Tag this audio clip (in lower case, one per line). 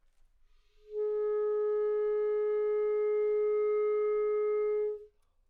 wind instrument
musical instrument
music